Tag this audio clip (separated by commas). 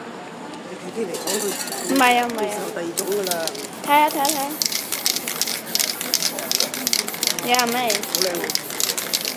Spray, Speech